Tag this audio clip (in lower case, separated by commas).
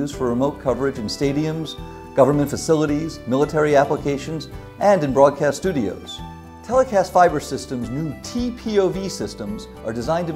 speech, music